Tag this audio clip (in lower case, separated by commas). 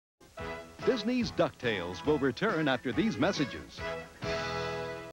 speech, music